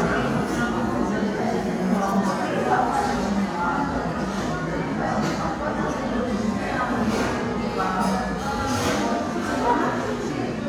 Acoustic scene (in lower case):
crowded indoor space